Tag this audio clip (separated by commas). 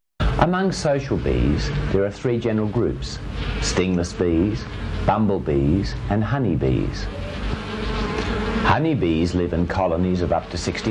housefly, bee or wasp, Insect